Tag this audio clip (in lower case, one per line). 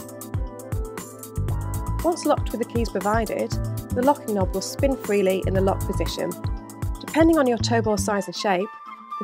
music
speech